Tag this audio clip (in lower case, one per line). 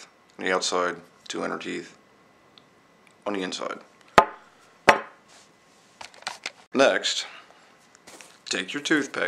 speech